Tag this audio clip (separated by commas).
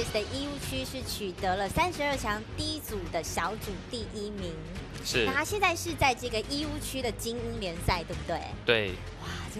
Music, Speech